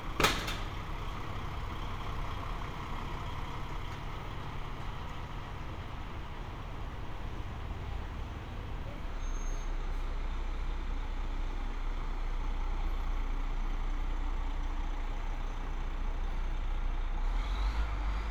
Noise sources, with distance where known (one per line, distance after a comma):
large-sounding engine, near